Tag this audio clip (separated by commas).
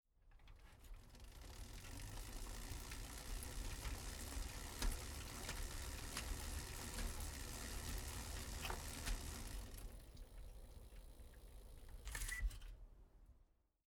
Bicycle, Vehicle